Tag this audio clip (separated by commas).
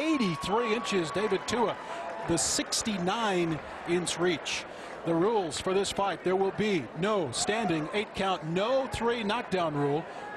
Speech